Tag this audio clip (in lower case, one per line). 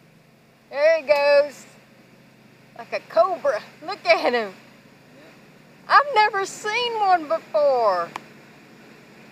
outside, rural or natural
speech